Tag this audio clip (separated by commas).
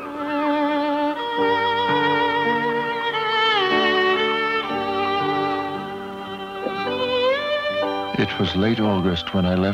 Musical instrument, Speech, fiddle, Music